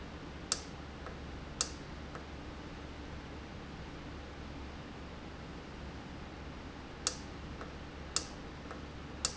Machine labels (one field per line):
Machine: valve